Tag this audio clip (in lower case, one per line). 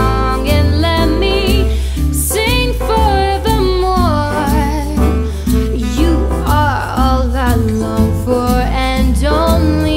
wind instrument
musical instrument